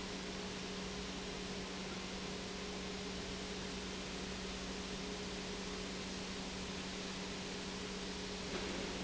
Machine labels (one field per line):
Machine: pump